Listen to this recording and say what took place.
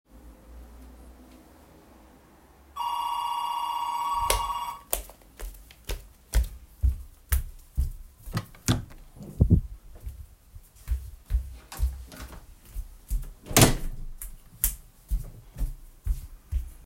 I opened the microwave door, placed an item inside, and closed it. I started the heating process and waited until it finished with a beep.